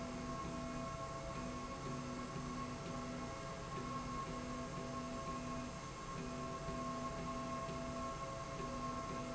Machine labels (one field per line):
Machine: slide rail